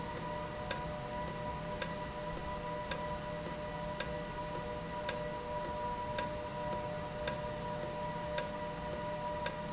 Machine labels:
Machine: valve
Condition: normal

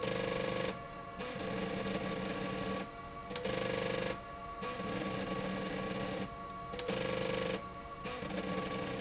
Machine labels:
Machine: slide rail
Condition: abnormal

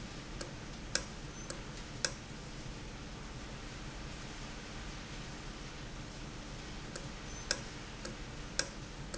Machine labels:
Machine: valve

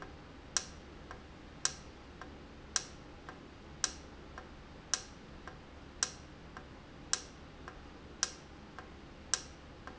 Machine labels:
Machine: valve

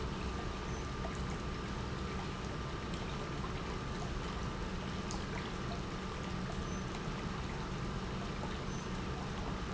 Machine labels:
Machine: pump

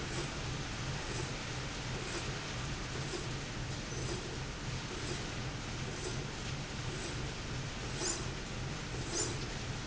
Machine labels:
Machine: slide rail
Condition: normal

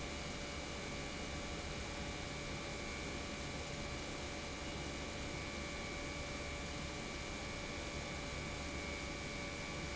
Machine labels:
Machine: pump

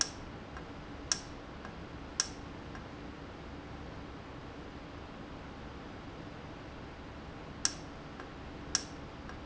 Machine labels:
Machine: valve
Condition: normal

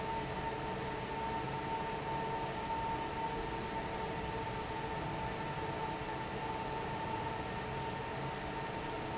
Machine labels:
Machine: fan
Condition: normal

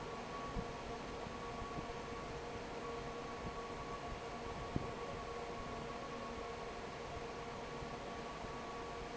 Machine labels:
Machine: fan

